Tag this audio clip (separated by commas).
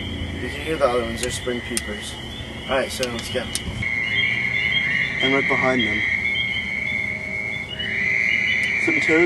Speech